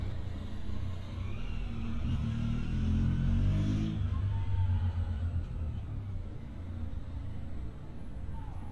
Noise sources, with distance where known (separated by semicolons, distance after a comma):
engine of unclear size